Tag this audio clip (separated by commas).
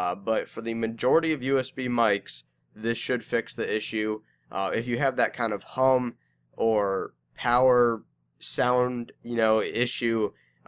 Speech